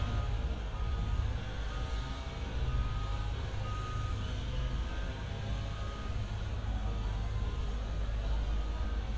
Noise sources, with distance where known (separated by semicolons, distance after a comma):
unidentified powered saw; reverse beeper